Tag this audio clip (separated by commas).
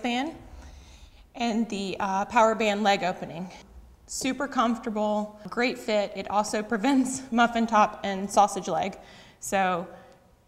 Speech